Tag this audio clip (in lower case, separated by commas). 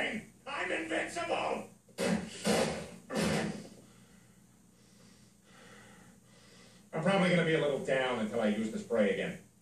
speech